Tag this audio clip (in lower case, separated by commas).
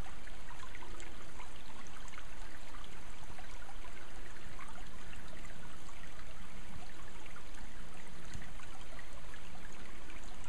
stream burbling